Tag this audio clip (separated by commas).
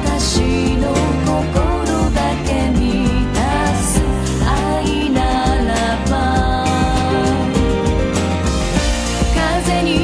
Happy music, Music